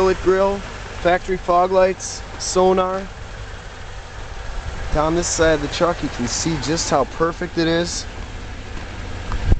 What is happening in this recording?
A man speaks while an engine sounds nearby